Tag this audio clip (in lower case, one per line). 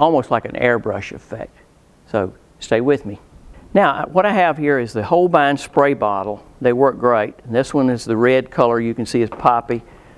speech